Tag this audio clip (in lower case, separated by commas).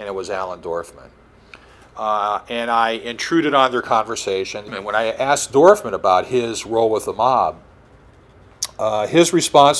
speech